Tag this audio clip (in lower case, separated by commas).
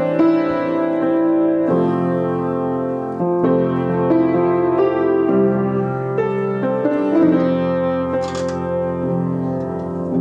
music